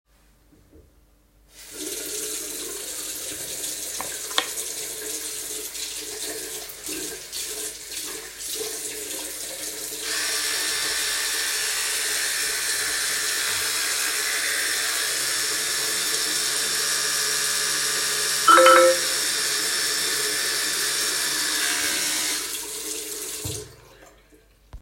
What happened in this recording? I was doing my morning routine when received a message from my friend.